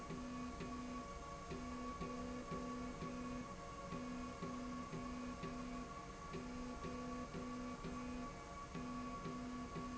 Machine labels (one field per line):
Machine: slide rail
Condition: normal